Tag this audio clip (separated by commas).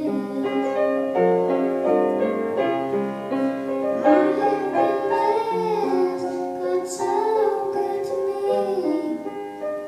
Music, Child singing, Female singing